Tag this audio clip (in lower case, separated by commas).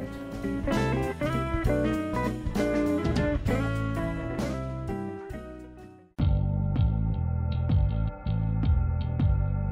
music